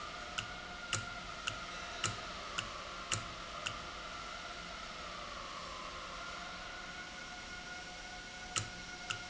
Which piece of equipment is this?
valve